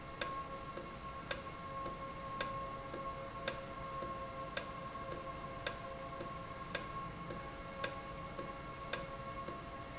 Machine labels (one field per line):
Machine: valve